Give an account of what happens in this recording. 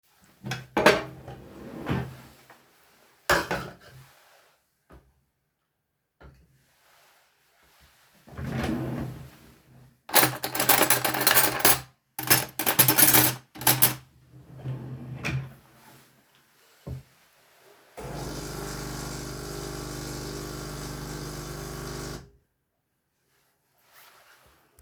I opened a cupboard, took out a cup and put it on a coffee machine, then I turned on the coffee machine and shuffled around the cutlery, then the coffe machine made coffee.